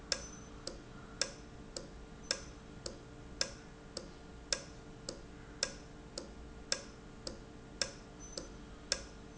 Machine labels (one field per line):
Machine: valve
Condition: normal